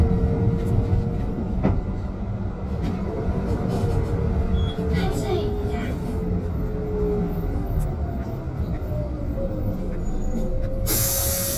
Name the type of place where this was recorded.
bus